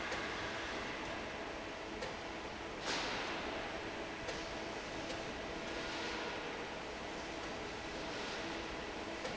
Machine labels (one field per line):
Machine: fan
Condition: normal